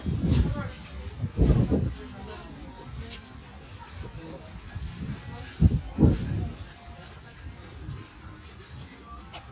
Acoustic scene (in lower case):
residential area